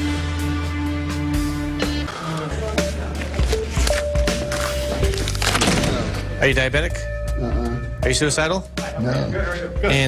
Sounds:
speech, music

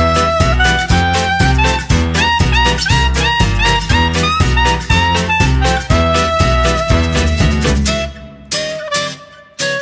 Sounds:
music, swing music

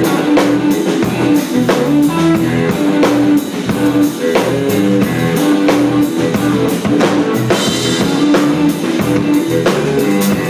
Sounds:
music, blues

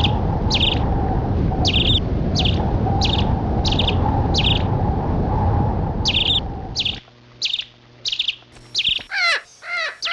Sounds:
tweet

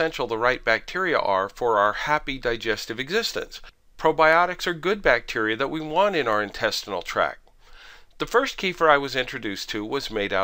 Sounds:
speech

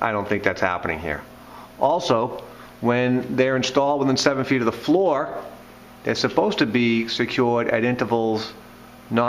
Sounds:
speech

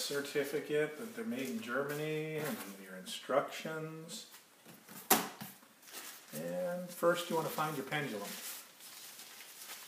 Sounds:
speech

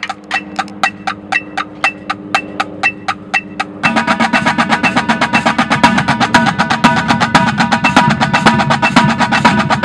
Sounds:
music, percussion

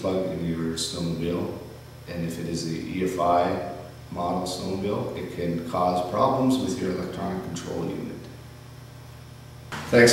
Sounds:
speech

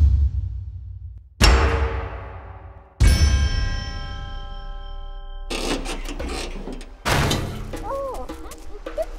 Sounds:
speech, music, outside, rural or natural

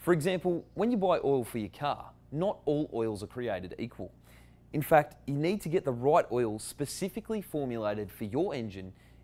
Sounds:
speech

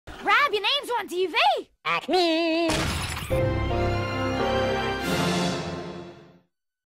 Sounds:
music, speech

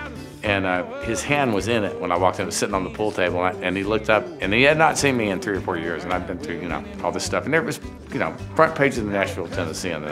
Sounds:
speech, music

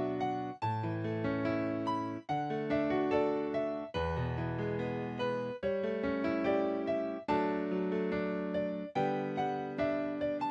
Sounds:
musical instrument, music

